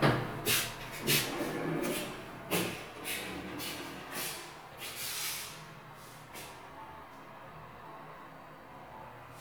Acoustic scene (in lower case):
elevator